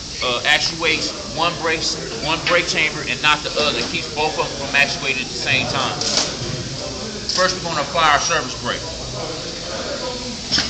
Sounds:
Speech

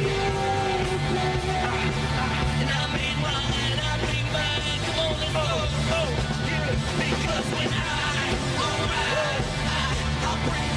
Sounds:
Music, Speech

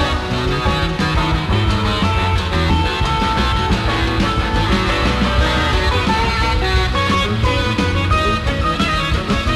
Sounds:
Music, inside a public space, inside a large room or hall

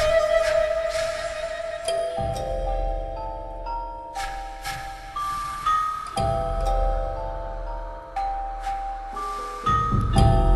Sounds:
Music

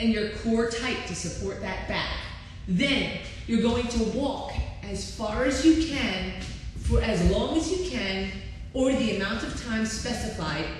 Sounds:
Speech

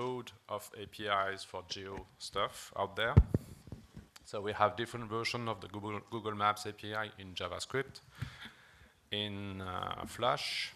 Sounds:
Speech

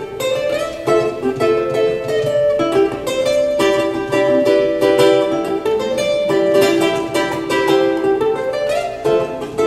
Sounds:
Musical instrument, Music, Plucked string instrument, Ukulele

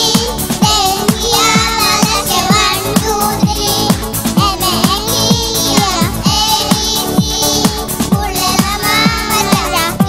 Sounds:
Child singing, Music

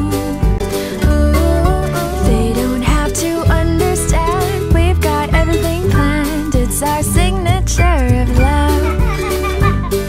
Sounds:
Music

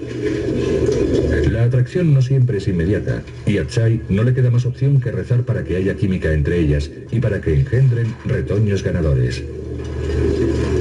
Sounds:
Speech

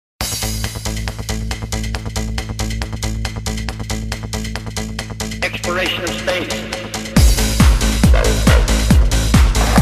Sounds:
Speech, Trance music, Music

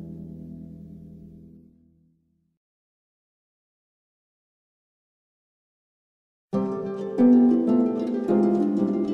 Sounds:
Music, Classical music

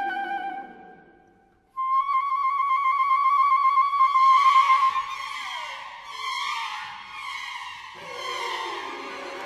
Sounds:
Theremin

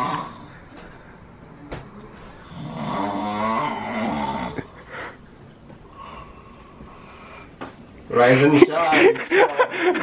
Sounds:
Speech, inside a small room

